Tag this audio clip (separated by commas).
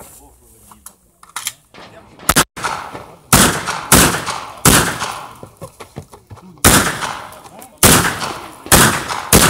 gunfire